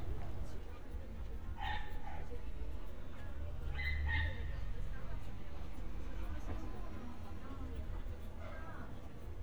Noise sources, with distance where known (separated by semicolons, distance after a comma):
person or small group talking; dog barking or whining, far